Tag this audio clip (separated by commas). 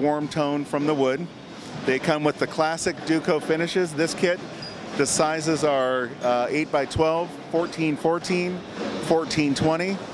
Speech